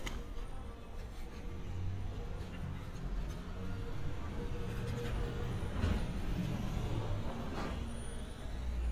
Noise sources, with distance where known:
medium-sounding engine

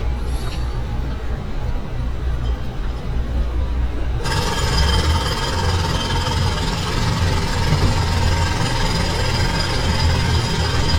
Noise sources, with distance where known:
jackhammer, near

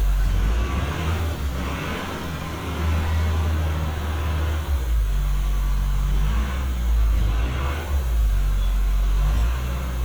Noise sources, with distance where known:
large-sounding engine

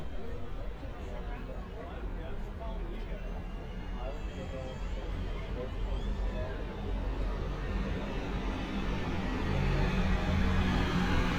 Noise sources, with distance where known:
engine of unclear size, near; person or small group talking, near

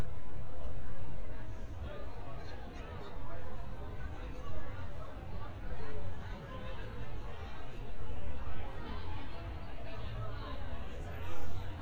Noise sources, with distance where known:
person or small group talking, near

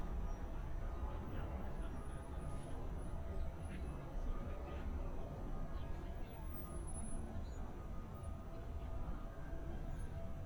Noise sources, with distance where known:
unidentified alert signal; unidentified human voice, far

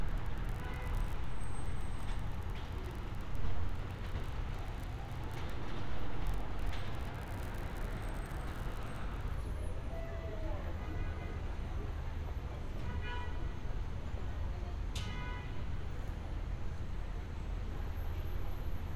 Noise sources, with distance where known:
car horn, far

